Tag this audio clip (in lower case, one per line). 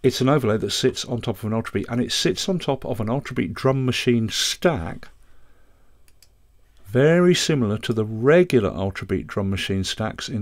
speech